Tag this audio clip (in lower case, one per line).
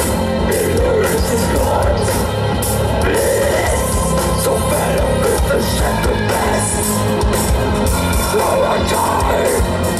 music